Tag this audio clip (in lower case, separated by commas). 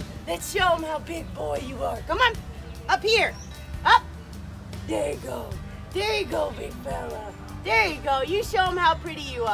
crocodiles hissing